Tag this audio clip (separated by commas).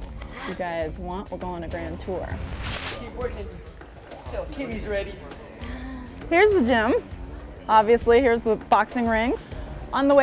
Speech